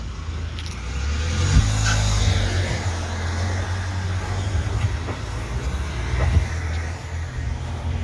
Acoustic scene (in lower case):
residential area